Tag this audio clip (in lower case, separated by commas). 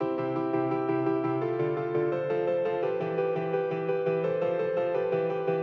musical instrument, keyboard (musical), piano, music